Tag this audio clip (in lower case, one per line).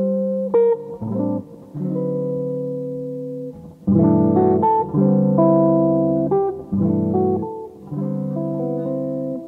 music